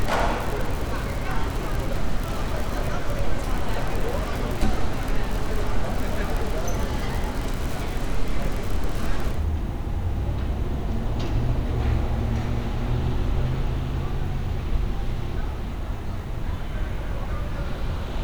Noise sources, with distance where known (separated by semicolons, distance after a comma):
engine of unclear size; person or small group talking